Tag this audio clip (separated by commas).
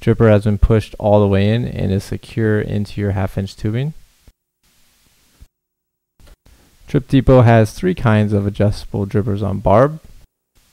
Speech